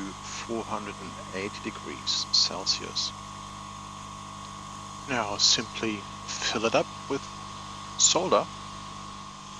A man talking as a small motor hums